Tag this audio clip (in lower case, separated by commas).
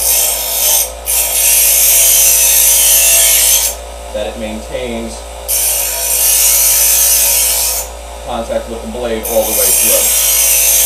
tools